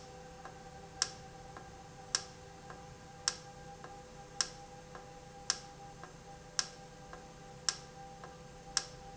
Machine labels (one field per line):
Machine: valve